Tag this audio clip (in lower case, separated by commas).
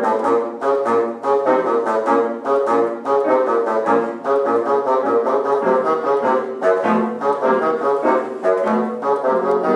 playing bassoon